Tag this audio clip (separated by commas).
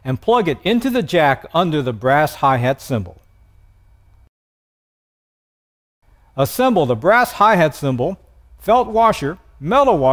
Speech